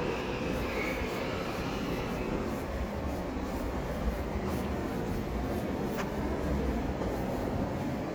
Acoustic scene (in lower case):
subway station